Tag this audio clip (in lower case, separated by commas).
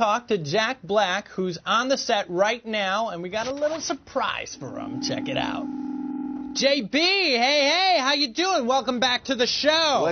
speech